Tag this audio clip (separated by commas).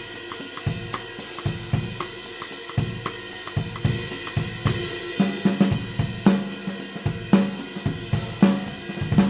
playing cymbal, Cymbal, Hi-hat